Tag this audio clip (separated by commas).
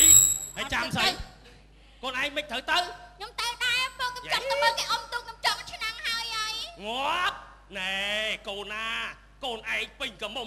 Speech